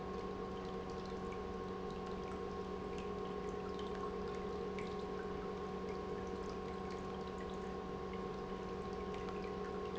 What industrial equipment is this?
pump